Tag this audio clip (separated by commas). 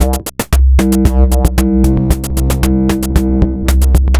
Drum kit, Music, Percussion, Musical instrument